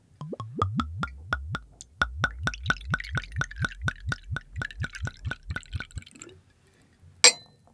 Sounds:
Water, Glass, clink, Liquid, Gurgling

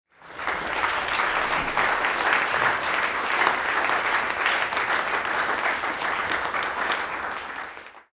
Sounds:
Human group actions, Applause

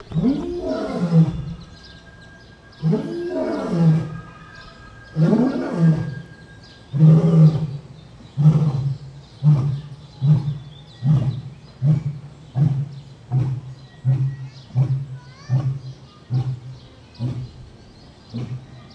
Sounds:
Animal, Wild animals

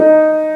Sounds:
Musical instrument, Keyboard (musical), Music, Piano

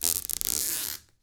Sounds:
Squeak

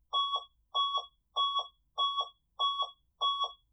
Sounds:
Bus, Vehicle, Motor vehicle (road), Alarm

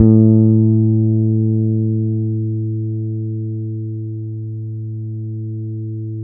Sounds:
Music, Musical instrument, Bass guitar, Guitar, Plucked string instrument

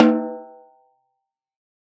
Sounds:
Snare drum, Percussion, Musical instrument, Drum, Music

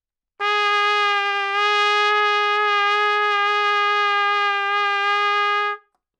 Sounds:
Brass instrument, Trumpet, Music, Musical instrument

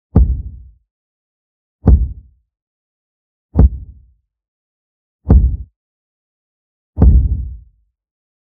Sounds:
thud

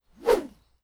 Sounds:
swish

